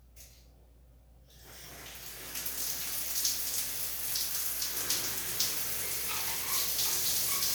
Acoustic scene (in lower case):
restroom